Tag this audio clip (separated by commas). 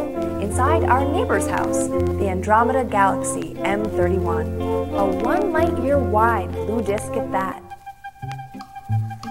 Speech, Music